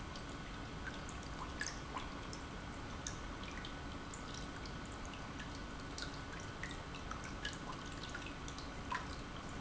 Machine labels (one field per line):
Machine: pump